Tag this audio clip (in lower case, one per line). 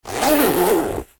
zipper (clothing)
domestic sounds